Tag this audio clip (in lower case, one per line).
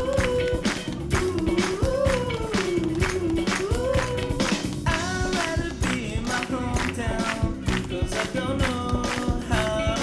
music